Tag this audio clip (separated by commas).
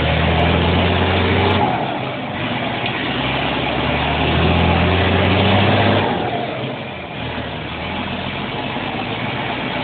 Sound effect